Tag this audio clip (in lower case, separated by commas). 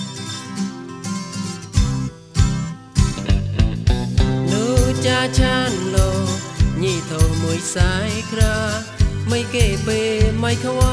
music, singing